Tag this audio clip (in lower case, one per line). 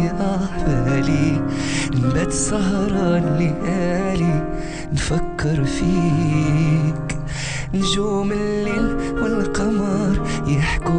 music